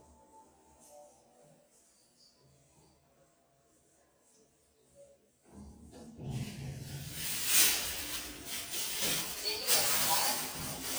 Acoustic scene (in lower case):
elevator